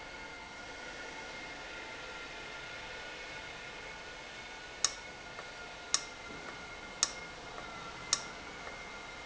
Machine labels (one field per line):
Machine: valve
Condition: abnormal